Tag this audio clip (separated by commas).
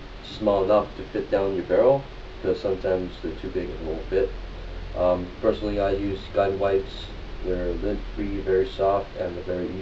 Speech